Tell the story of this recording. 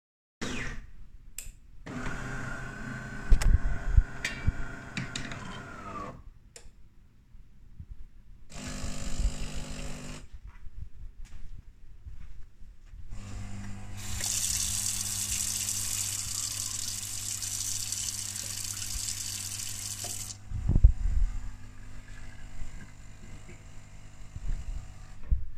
I made coffee, while washing my hands. The dishwasher was running in the background